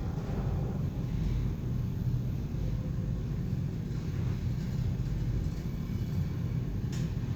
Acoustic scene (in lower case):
elevator